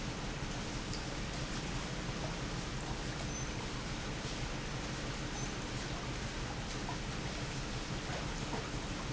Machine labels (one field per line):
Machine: pump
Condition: normal